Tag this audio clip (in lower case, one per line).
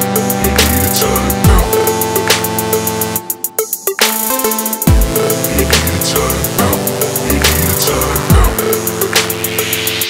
electronic music
music
dubstep